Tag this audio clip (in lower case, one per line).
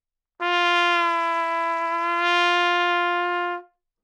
musical instrument
brass instrument
trumpet
music